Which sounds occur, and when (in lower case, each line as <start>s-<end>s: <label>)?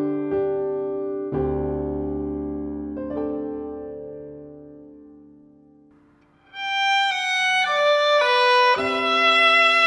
0.0s-6.1s: music
0.0s-9.8s: background noise
6.2s-6.2s: tick
6.4s-9.8s: music